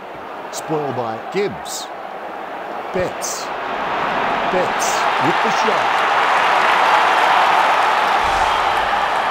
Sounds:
Speech

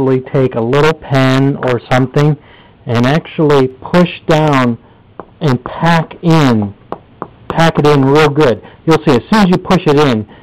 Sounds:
inside a small room, Speech

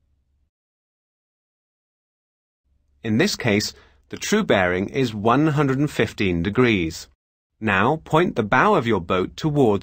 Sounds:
Silence, Speech

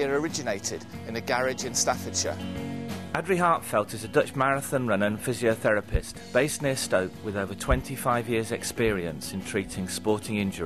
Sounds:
Music, Speech

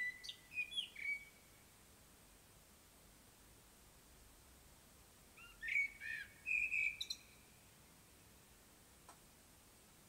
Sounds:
mynah bird singing

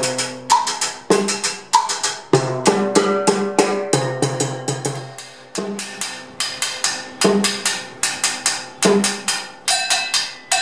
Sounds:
playing timbales

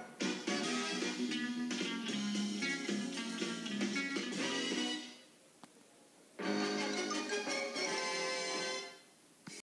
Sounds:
Music

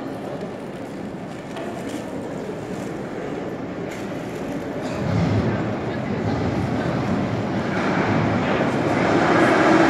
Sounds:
subway

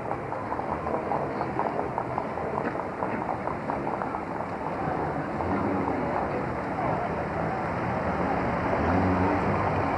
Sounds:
outside, urban or man-made, Vehicle, Car

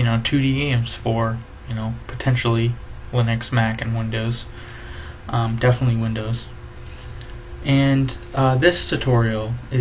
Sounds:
Speech

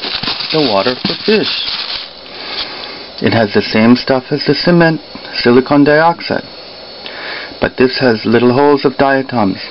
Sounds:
Speech

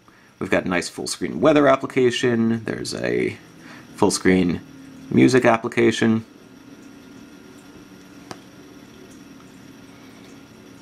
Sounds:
inside a small room, Speech

